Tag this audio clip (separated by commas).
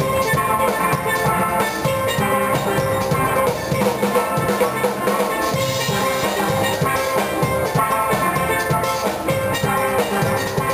Drum, Music, Steelpan